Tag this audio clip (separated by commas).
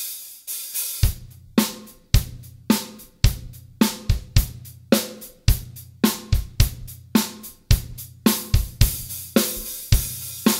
Music